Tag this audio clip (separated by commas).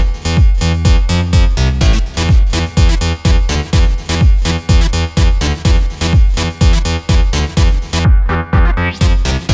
Soundtrack music, Background music, Exciting music, Music, Tender music